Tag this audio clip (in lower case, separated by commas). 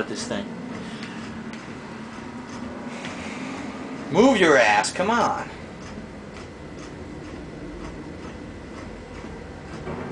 speech